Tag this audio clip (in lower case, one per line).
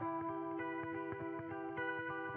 music
musical instrument
guitar
electric guitar
plucked string instrument